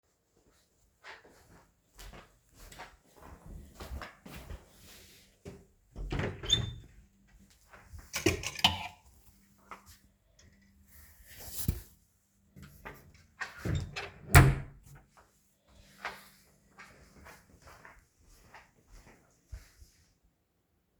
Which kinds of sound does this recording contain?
footsteps, wardrobe or drawer